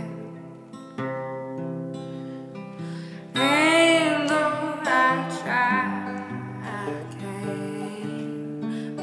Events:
0.0s-9.0s: music
3.3s-5.9s: female singing
6.6s-9.0s: female singing

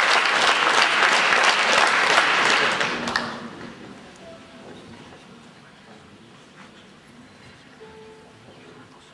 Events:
0.0s-3.7s: applause
0.0s-9.1s: speech babble
0.0s-9.1s: mechanisms
4.1s-4.2s: tick
4.9s-5.2s: generic impact sounds
5.3s-5.5s: tick
6.3s-6.7s: generic impact sounds
7.2s-7.7s: brief tone
7.8s-8.3s: music
8.4s-8.9s: surface contact

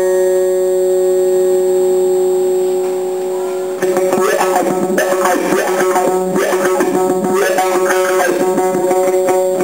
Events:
0.0s-9.6s: mechanisms
0.0s-9.6s: music
0.6s-0.7s: generic impact sounds
0.8s-0.9s: generic impact sounds
1.2s-1.3s: generic impact sounds
2.6s-3.0s: surface contact
3.1s-3.2s: generic impact sounds
3.4s-3.6s: surface contact
9.3s-9.4s: generic impact sounds

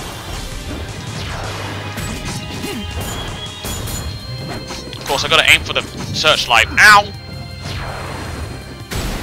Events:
0.0s-9.2s: music
0.0s-9.2s: video game sound
6.1s-6.6s: man speaking
6.7s-7.1s: human voice

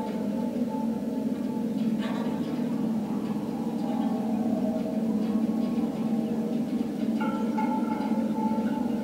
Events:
0.0s-9.0s: mechanisms
0.0s-9.0s: music
0.0s-9.0s: music
1.7s-1.8s: generic impact sounds
1.9s-2.6s: generic impact sounds
3.2s-3.3s: generic impact sounds
3.7s-3.9s: generic impact sounds
5.1s-5.3s: generic impact sounds
5.5s-5.8s: generic impact sounds
7.2s-9.0s: bell

